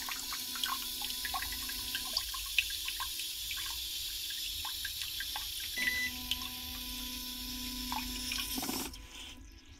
Dripping of water with a mechanical sound and a beep